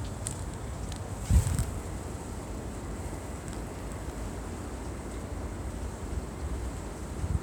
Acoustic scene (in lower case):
residential area